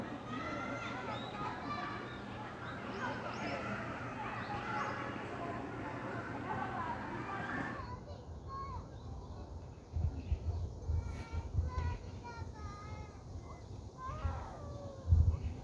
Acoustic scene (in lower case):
park